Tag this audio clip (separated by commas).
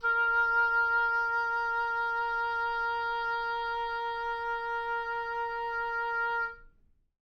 woodwind instrument, Musical instrument, Music